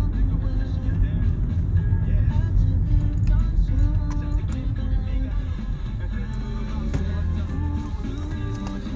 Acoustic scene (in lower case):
car